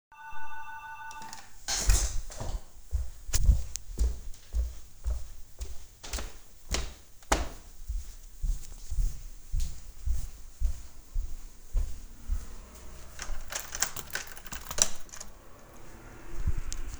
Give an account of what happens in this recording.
The doorbell rang,so I got up and walked to the front door. I checked if the door was unlocked by trying the key and then opened the door.